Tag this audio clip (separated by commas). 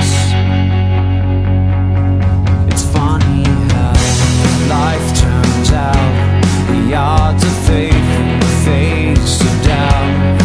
Music